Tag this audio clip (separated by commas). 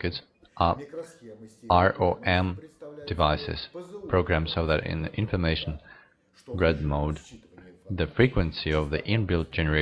Speech